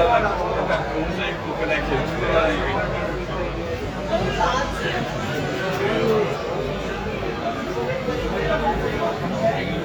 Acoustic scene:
crowded indoor space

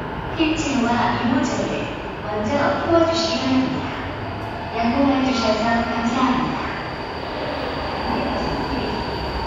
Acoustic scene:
subway station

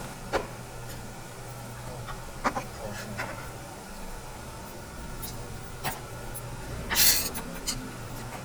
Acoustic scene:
restaurant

